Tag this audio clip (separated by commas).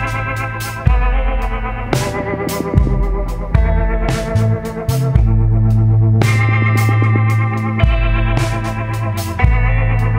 Music